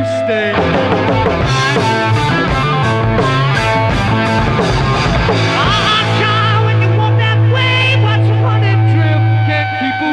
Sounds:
Music

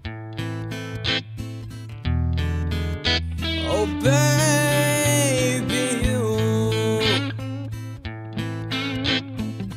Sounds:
Electronic tuner, Music

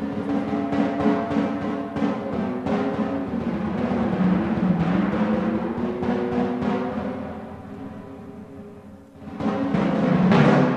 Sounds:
Classical music, Timpani, Music, Musical instrument, Orchestra, Jazz, Drum

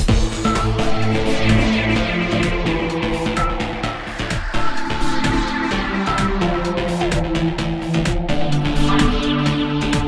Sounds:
Music

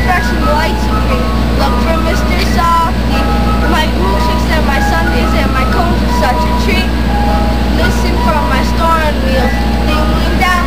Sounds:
Speech, Jingle, Music

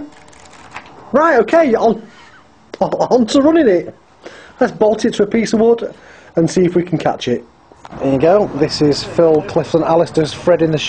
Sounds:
Speech

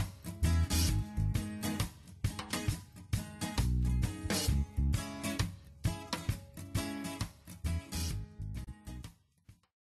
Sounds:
Music

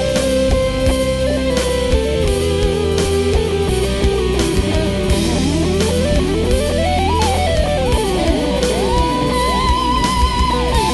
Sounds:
Electric guitar, Plucked string instrument, Musical instrument, Guitar, Music

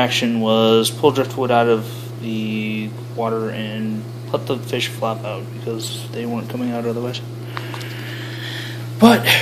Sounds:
Speech

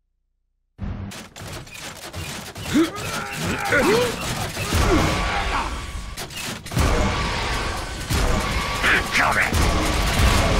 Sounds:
Speech

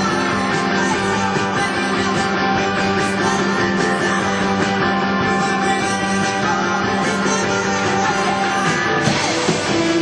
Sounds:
Music

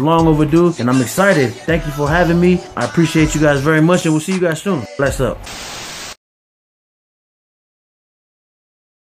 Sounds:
Speech, Music

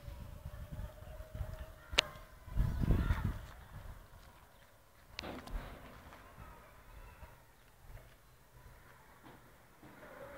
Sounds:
outside, rural or natural

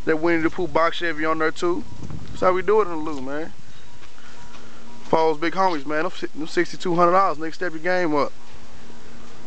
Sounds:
Speech

